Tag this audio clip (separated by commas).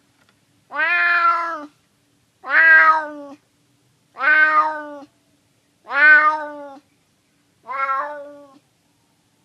cat meowing